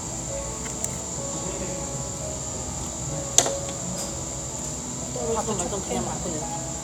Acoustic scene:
cafe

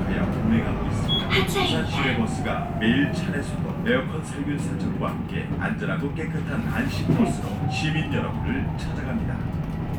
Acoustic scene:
bus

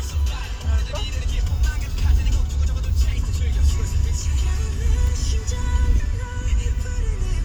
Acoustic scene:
car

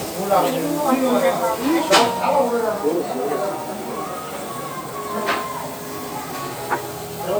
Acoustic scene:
restaurant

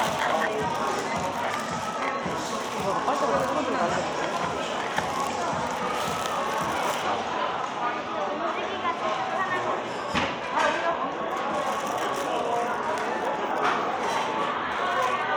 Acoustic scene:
cafe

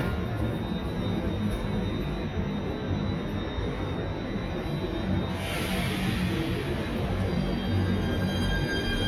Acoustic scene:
subway station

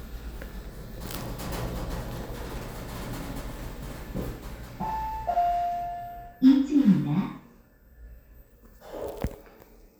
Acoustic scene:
elevator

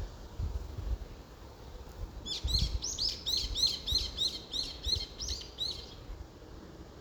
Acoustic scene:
park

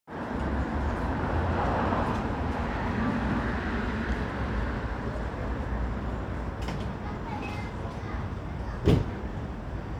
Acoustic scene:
residential area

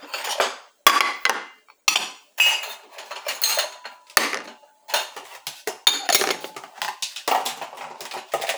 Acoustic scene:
kitchen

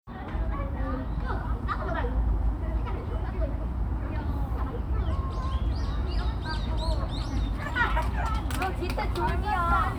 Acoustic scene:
park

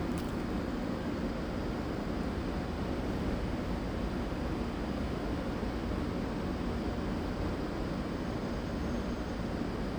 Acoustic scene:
residential area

